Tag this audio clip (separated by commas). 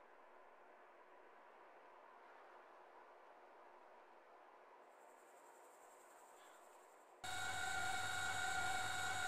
Silence